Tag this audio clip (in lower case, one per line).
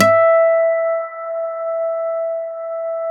acoustic guitar
plucked string instrument
music
musical instrument
guitar